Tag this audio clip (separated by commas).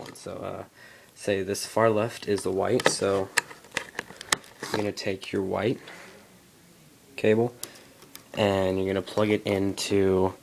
Speech, inside a small room